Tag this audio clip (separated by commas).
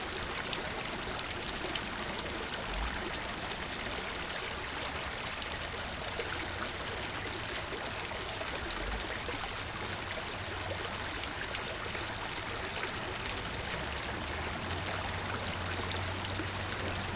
Water, Stream